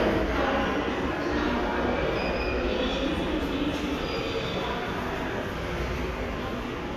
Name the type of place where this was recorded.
subway station